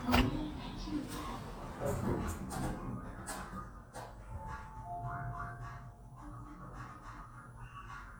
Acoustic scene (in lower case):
elevator